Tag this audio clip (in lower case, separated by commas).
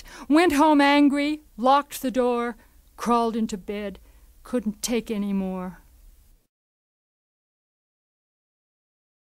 speech